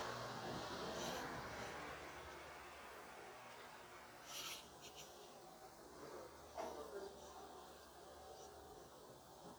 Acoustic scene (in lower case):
residential area